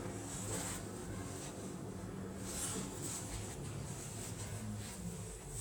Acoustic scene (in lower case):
elevator